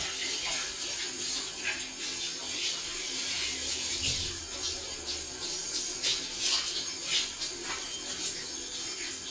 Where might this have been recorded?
in a restroom